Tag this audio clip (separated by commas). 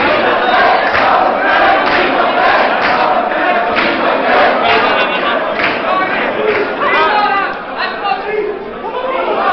man speaking, Speech, Conversation